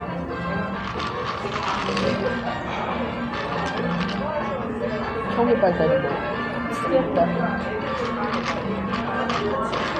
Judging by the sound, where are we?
in a cafe